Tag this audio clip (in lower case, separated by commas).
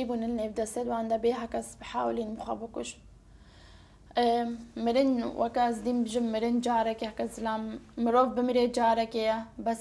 inside a small room, speech